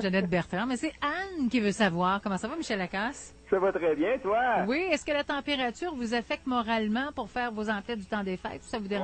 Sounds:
Speech

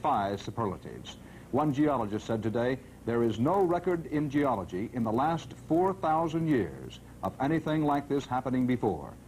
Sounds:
Speech

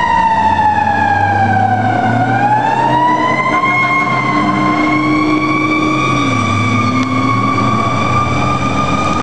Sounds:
Car, fire truck (siren), Vehicle

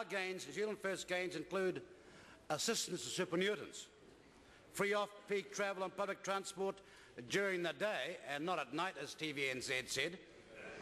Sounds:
Narration, Speech, man speaking

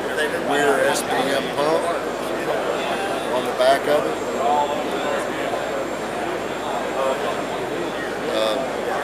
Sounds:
Speech

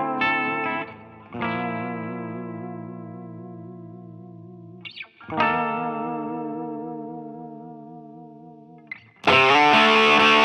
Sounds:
Effects unit, Echo, Music, Reverberation, Guitar, playing electric guitar, Electric guitar, Musical instrument

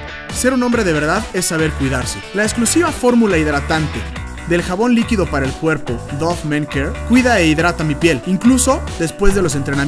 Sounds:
Music, Speech

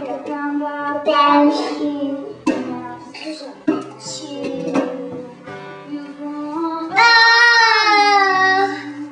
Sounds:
Music, Child singing

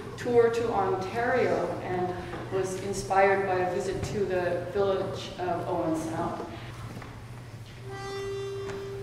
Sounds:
Music, Speech

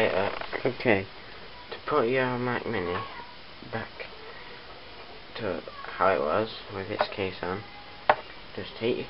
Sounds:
Speech, inside a small room

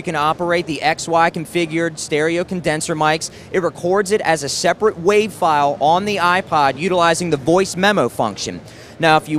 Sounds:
Speech

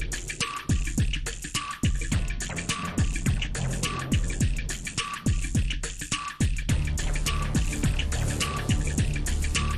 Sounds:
Music

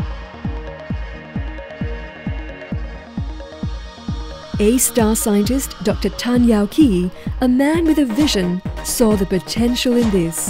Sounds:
Speech, Music

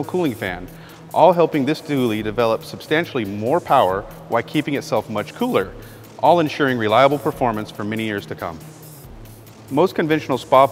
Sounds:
Speech

